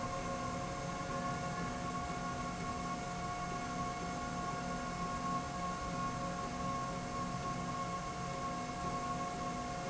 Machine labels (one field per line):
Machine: slide rail